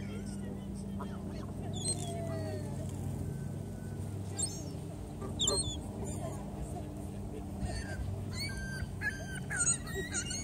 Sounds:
Fowl, Honk, Goose

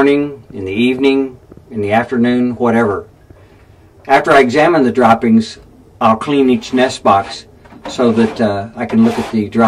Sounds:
Speech

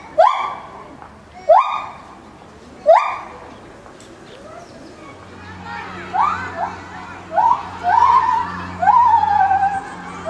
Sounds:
gibbon howling

